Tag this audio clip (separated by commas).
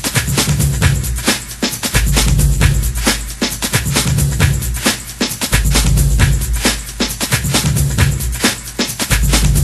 Music